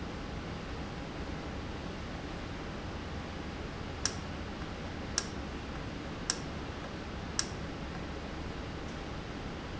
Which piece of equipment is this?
valve